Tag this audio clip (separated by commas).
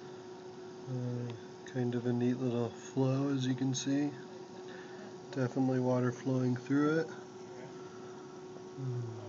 Speech